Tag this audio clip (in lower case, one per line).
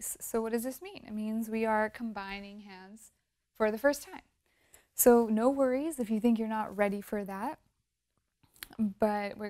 speech